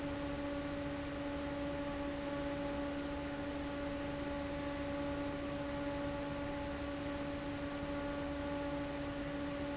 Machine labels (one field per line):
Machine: fan